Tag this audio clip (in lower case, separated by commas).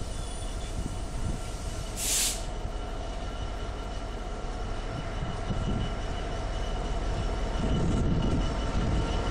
rail transport, train wagon, outside, rural or natural, vehicle, train